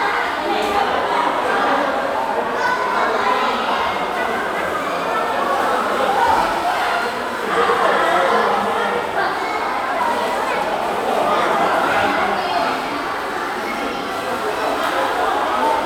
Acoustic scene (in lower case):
crowded indoor space